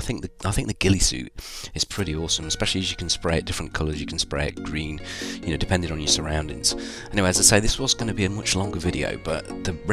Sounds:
narration

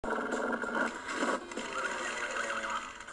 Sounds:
music, horse, neigh

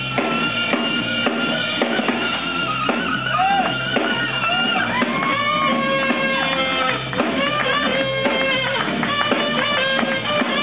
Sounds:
inside a large room or hall, jazz, speech, music

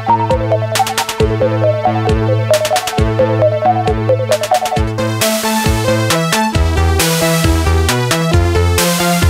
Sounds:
playing synthesizer, musical instrument, organ, keyboard (musical), synthesizer

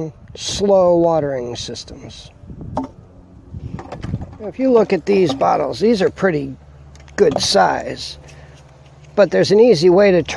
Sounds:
speech

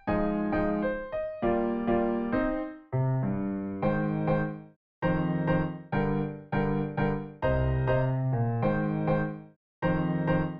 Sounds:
piano, keyboard (musical), music, electric piano

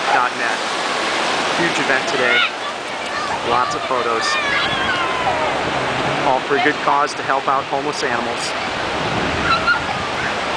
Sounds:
speech, waves, ocean

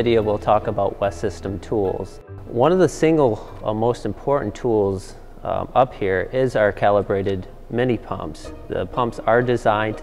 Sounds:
speech, music

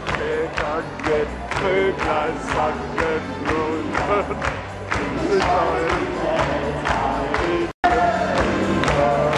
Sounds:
inside a public space, inside a large room or hall, music

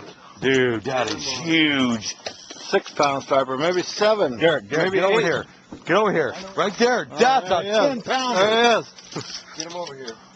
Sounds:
speech

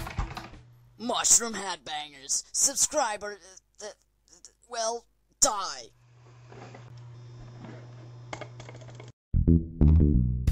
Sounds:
music, speech, inside a small room

